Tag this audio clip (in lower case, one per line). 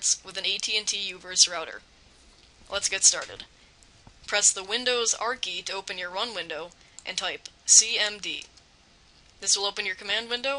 narration